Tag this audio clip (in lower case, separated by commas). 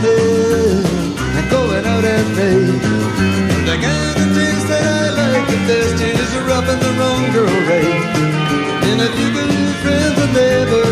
ska, music, singing